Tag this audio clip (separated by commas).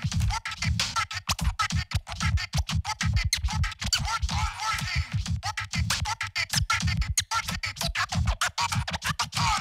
Scratching (performance technique), Music